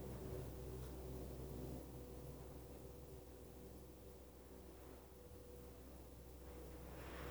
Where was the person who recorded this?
in an elevator